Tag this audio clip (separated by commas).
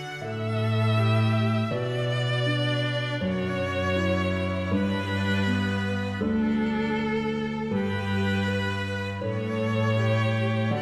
Cello, Music